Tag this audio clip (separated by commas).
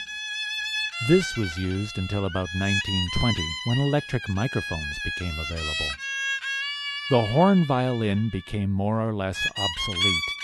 Music, Speech, Violin, Musical instrument